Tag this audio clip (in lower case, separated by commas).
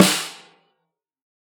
snare drum, drum, music, percussion, musical instrument